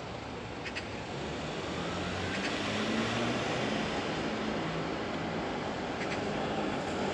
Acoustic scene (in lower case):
street